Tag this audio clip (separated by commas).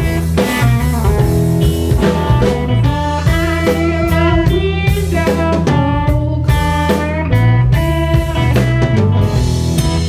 Music